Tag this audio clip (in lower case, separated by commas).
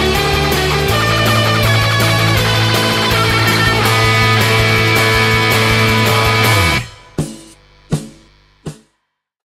electric guitar, music, plucked string instrument, musical instrument, progressive rock, heavy metal